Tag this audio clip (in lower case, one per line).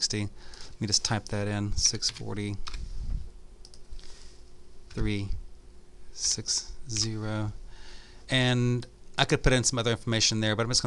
speech